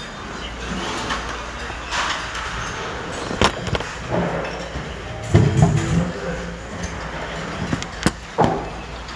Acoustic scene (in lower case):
restaurant